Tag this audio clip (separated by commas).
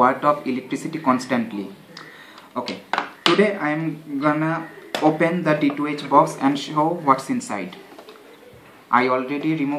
Speech